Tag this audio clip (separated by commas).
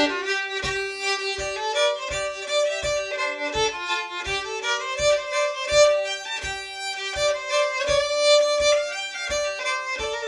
Violin, Musical instrument, Music